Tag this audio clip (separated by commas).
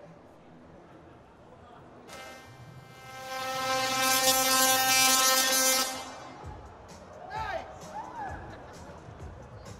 Music